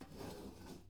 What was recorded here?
metal furniture moving